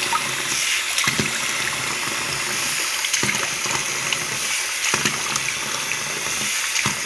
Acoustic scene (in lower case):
restroom